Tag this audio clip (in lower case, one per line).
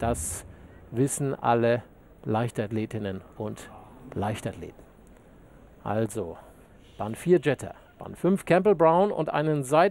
speech
outside, urban or man-made